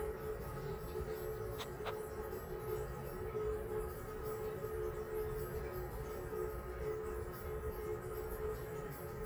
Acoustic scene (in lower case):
restroom